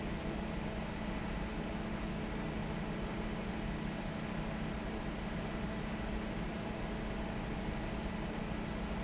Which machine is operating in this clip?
fan